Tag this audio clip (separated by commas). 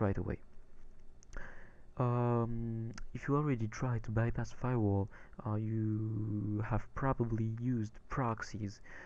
Speech